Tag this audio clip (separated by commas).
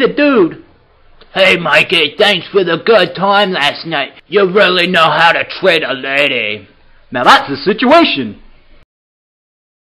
Speech